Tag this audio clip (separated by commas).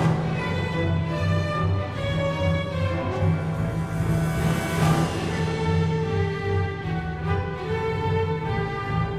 Music, Exciting music, Theme music